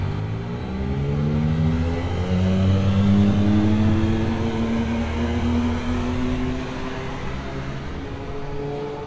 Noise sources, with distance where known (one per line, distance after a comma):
large-sounding engine, near